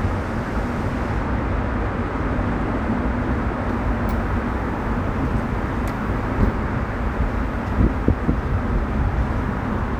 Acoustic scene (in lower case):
street